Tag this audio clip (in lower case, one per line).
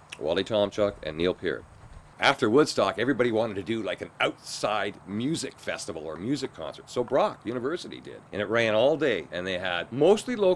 speech